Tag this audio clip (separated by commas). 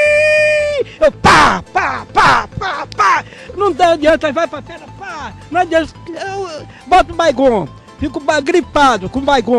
Music, Speech